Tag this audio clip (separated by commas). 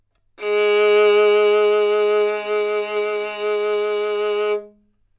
Music, Musical instrument, Bowed string instrument